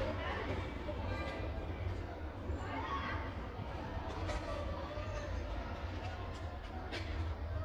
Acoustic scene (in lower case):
park